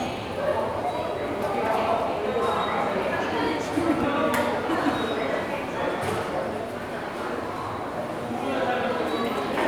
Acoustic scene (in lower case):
subway station